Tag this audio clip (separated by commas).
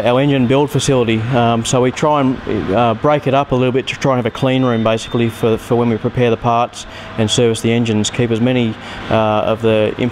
Speech